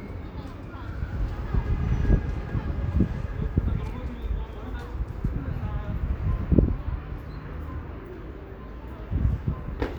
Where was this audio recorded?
in a residential area